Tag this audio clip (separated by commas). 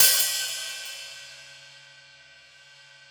Musical instrument, Hi-hat, Cymbal, Percussion, Music